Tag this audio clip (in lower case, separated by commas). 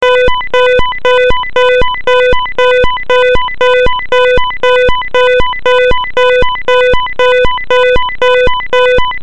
alarm